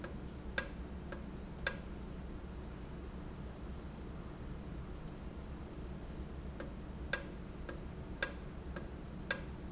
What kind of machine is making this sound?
valve